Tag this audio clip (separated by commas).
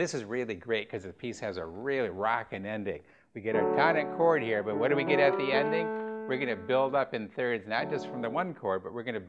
Music, Speech